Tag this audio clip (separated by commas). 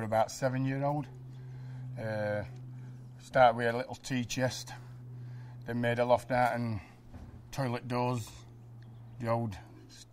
Speech